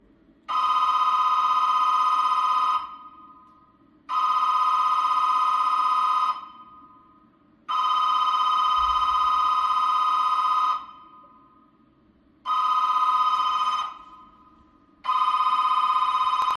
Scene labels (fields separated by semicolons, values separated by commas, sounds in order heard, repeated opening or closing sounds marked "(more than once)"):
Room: hallway; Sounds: phone ringing, bell ringing, footsteps, light switch